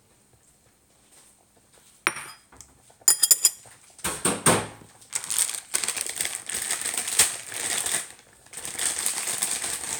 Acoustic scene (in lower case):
kitchen